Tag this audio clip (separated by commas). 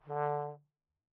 Musical instrument, Brass instrument, Music